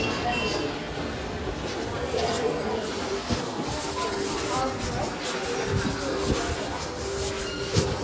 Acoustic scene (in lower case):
crowded indoor space